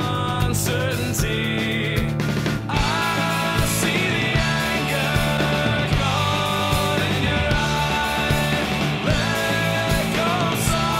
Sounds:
Music

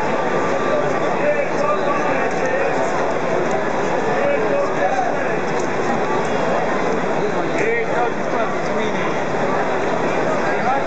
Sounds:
Speech

